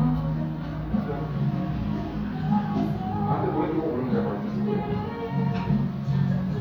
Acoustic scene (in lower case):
cafe